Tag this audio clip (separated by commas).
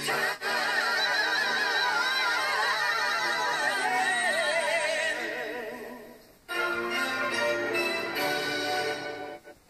Television, Music